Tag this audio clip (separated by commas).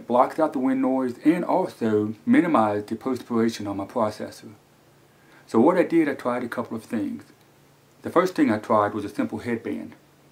Speech